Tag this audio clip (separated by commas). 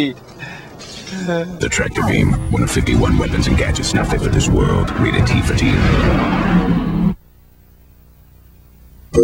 Speech